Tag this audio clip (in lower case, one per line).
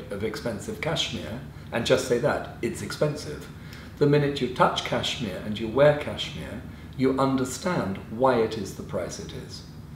speech